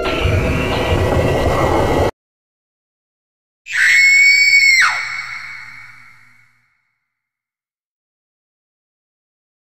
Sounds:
Sound effect

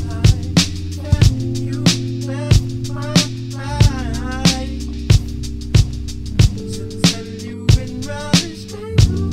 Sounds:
Music

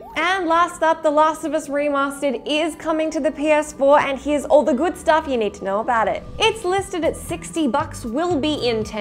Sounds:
Speech, Music

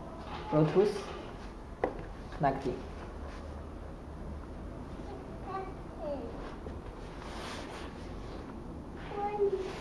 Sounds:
Speech

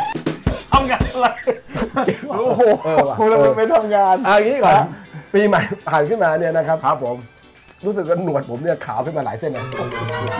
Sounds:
Speech, Music

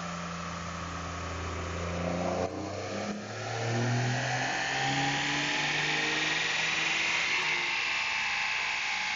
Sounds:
Vehicle, Truck

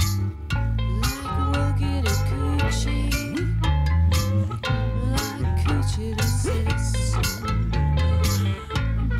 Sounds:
Music, Singing

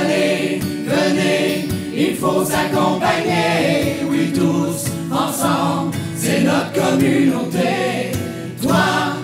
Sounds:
Singing, A capella, Music

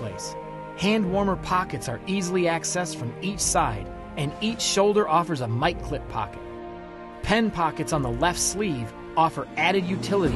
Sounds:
Music, Speech

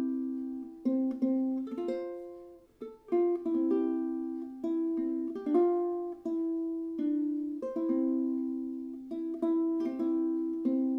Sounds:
Music, Lullaby

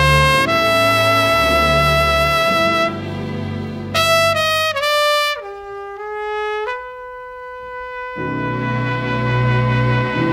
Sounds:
Music

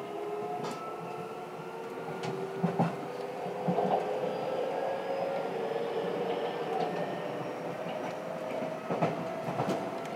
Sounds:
Vehicle

